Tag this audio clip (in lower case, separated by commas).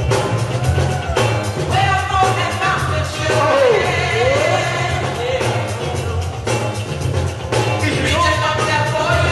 music, speech